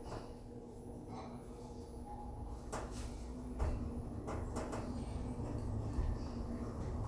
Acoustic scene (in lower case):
elevator